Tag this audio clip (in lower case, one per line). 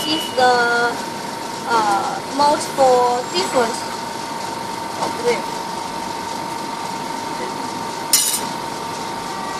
inside a small room
speech